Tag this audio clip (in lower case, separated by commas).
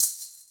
music, musical instrument, rattle (instrument), percussion